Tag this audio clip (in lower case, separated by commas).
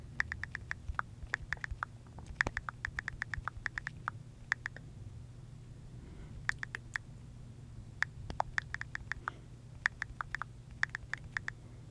domestic sounds, typing